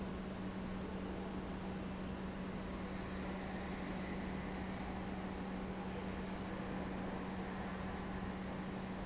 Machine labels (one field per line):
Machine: pump